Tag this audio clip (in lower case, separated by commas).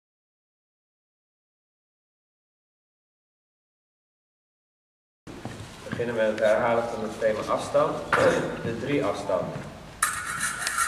speech